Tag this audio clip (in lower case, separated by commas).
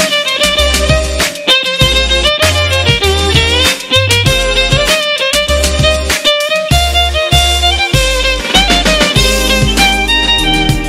music, violin, musical instrument